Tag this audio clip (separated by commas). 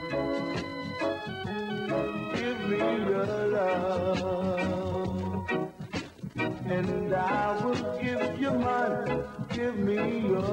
Music